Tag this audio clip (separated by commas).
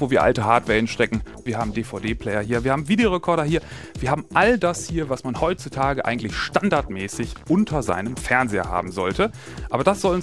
Speech, Music